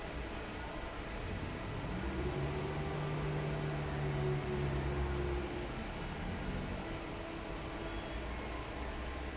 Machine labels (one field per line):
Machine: fan